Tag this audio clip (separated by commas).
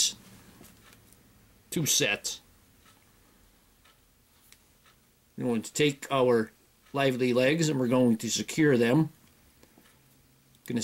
inside a small room, Speech